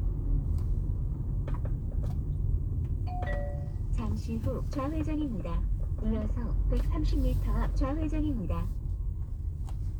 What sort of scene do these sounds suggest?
car